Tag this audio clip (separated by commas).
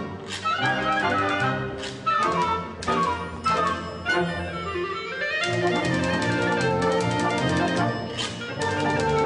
Musical instrument, Music